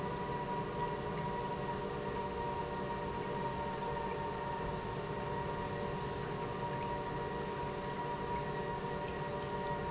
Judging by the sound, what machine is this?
pump